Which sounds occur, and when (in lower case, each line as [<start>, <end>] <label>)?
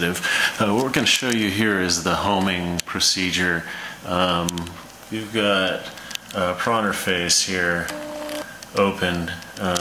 [0.00, 0.17] male speech
[0.00, 9.80] printer
[0.19, 0.55] breathing
[0.54, 3.58] male speech
[3.61, 3.97] breathing
[3.96, 4.59] male speech
[5.08, 5.86] male speech
[6.27, 7.89] male speech
[8.71, 9.32] male speech
[9.49, 9.80] male speech